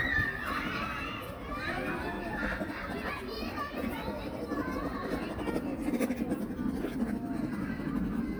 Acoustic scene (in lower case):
park